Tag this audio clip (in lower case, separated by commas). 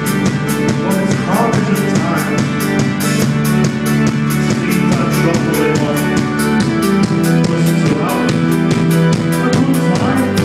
electronic music, music, techno, speech